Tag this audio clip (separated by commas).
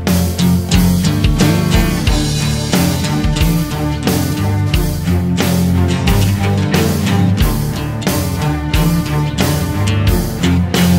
Music